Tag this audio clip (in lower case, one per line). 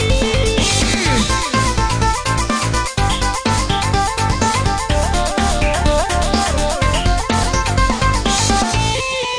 guitar
music
acoustic guitar
musical instrument